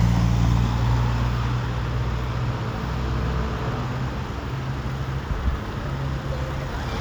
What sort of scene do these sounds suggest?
street